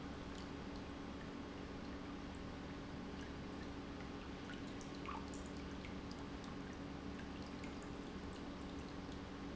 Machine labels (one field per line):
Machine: pump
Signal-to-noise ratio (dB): 6 dB